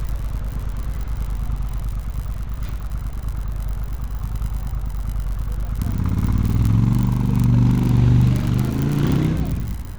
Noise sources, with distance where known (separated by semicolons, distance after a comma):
medium-sounding engine, near